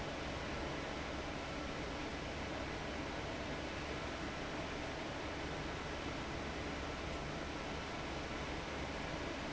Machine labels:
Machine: fan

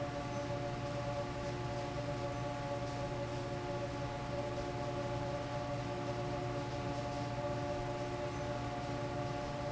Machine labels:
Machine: fan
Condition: normal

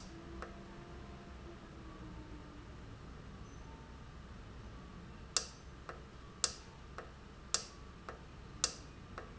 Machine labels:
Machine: valve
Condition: normal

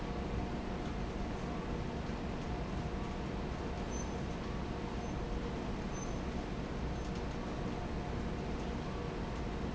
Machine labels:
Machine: fan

